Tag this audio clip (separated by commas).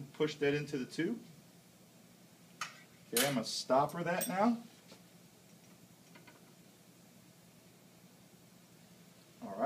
Speech